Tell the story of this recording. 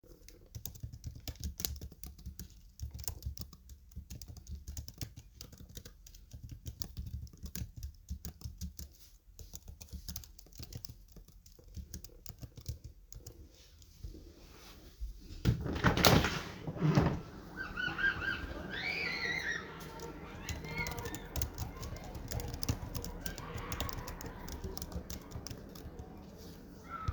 I was typing on my laptop, got up to open the window and resumed typing.